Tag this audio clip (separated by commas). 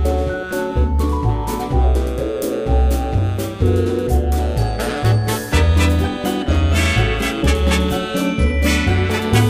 Music, Soundtrack music